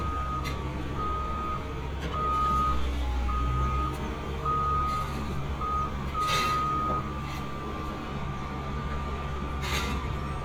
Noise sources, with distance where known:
large-sounding engine, near; reverse beeper, near

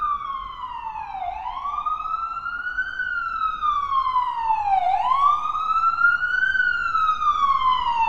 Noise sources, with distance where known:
siren, near

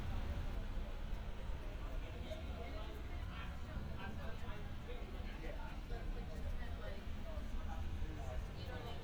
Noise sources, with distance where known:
person or small group talking, near

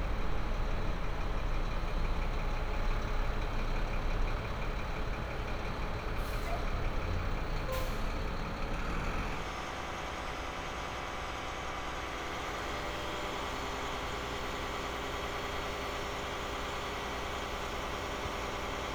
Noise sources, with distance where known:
large-sounding engine, near

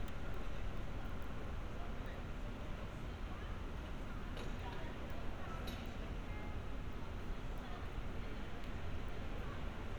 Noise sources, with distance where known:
car horn, far; person or small group talking, far

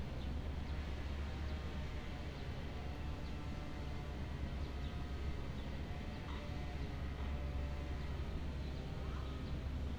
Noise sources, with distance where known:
chainsaw, far

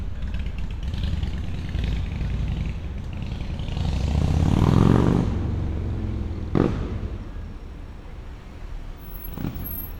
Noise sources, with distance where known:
small-sounding engine, near

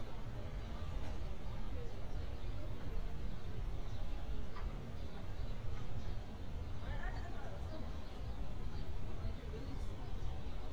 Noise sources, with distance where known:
person or small group talking, near

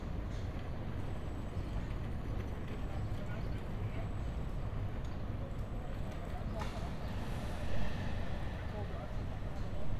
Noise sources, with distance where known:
engine of unclear size

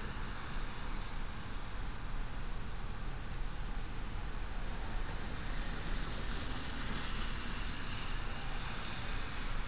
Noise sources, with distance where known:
engine of unclear size

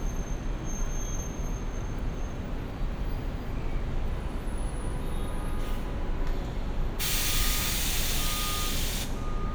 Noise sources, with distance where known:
reverse beeper, near

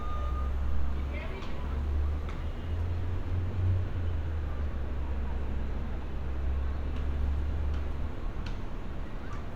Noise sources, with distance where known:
person or small group talking

